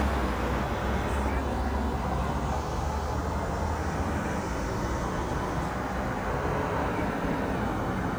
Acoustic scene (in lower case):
street